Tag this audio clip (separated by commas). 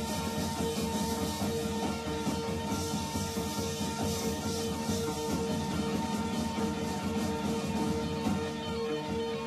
Music